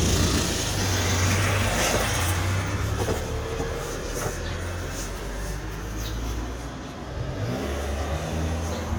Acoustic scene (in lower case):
residential area